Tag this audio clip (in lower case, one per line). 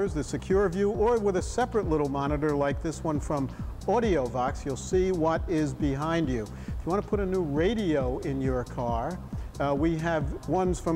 speech
music